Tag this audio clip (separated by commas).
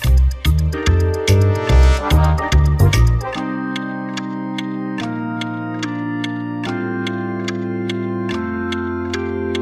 Music